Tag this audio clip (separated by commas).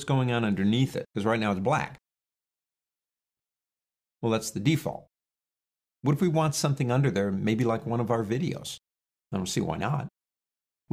Speech